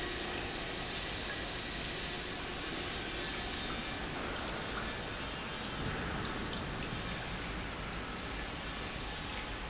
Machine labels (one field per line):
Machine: pump